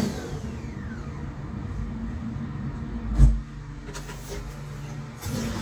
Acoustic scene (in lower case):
restroom